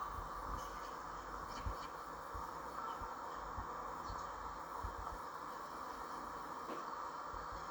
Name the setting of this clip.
park